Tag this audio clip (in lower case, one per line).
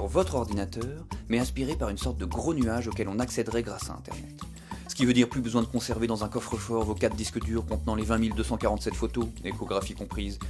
speech
music